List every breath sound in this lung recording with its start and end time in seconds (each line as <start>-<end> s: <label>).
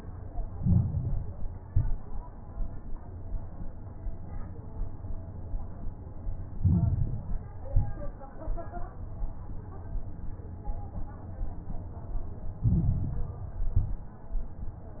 0.47-1.57 s: inhalation
0.47-1.57 s: crackles
1.59-2.24 s: exhalation
1.59-2.24 s: crackles
6.52-7.62 s: inhalation
6.52-7.62 s: crackles
7.70-8.34 s: exhalation
7.70-8.34 s: crackles
12.58-13.68 s: inhalation
12.58-13.68 s: crackles
13.72-14.36 s: exhalation
13.72-14.36 s: crackles